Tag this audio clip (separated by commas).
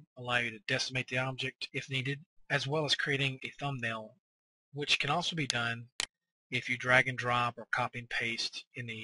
Speech